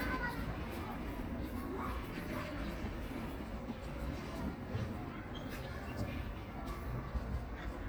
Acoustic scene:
park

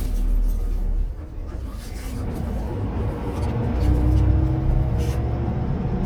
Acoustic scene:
car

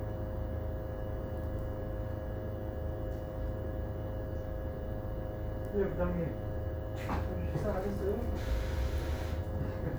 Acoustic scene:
bus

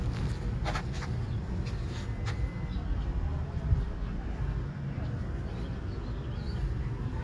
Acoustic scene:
park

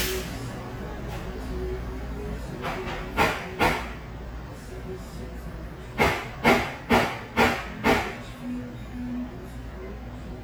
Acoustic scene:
cafe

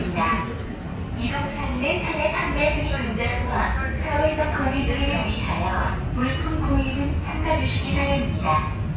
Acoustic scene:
subway train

